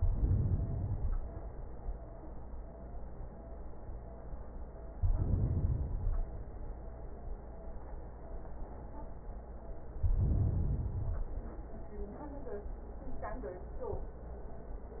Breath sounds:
0.00-1.41 s: inhalation
4.90-6.32 s: inhalation
9.93-11.35 s: inhalation

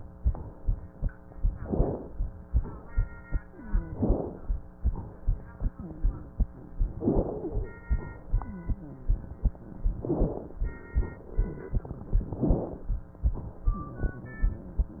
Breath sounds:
1.56-2.15 s: crackles
1.57-2.13 s: inhalation
2.47-3.02 s: exhalation
3.93-4.48 s: inhalation
3.93-4.48 s: crackles
4.84-5.43 s: exhalation
7.00-7.55 s: inhalation
7.00-7.55 s: crackles
7.89-8.48 s: exhalation
10.04-10.59 s: inhalation
10.04-10.59 s: crackles
12.31-12.87 s: inhalation
12.31-12.87 s: crackles

